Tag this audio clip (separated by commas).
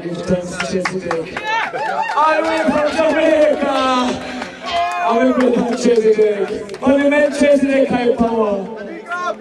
Speech